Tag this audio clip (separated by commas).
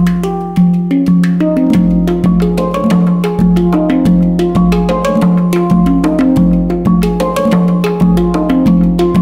Music, Percussion